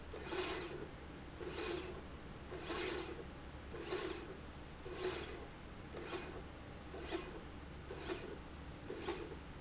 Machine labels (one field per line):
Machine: slide rail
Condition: normal